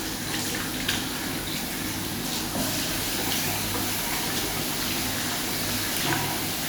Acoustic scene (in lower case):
restroom